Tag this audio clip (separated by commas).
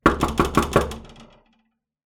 Knock, Door, Domestic sounds